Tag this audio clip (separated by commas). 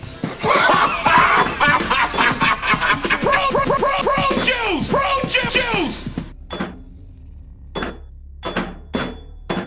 Music, inside a large room or hall